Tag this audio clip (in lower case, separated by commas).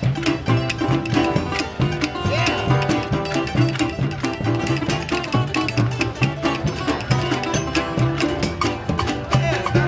speech, music